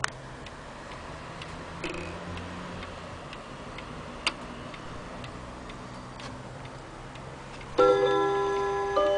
A clock ticking and chiming